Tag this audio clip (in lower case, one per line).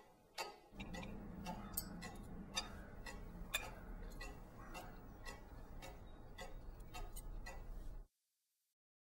clock